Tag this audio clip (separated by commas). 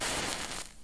Fire